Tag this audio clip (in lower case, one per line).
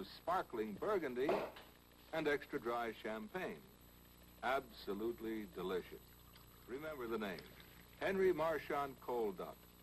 speech